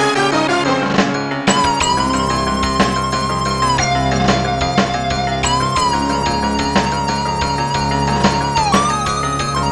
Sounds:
Music

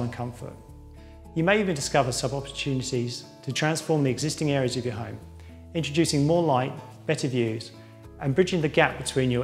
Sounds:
Music, Speech

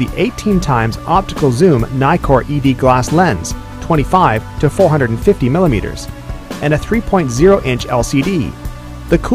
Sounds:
Speech, Music

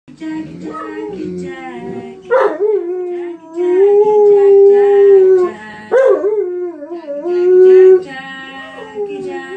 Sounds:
dog howling

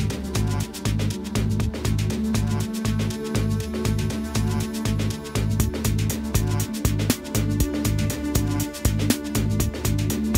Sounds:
Music

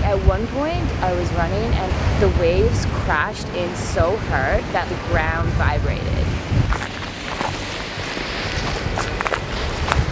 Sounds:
Speech, outside, rural or natural

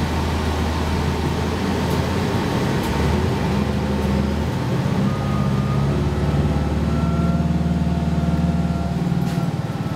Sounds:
Vehicle, Bus

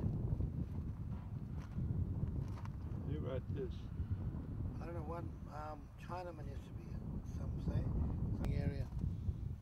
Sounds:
Speech

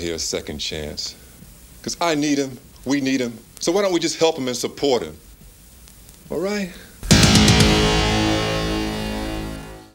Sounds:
man speaking, Narration, Speech, Music

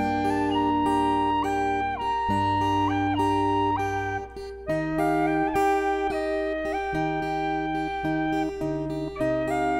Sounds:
Plucked string instrument, Music, Acoustic guitar, Strum, Musical instrument, Guitar, Electric guitar

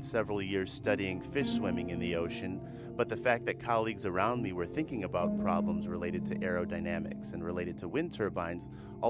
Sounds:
Music, Speech

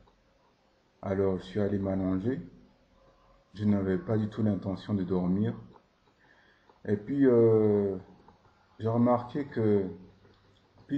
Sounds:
Speech

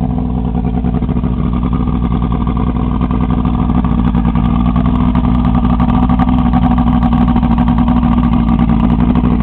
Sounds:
speedboat, outside, rural or natural, Vehicle

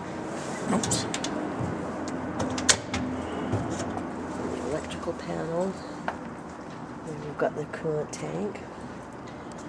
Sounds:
Speech

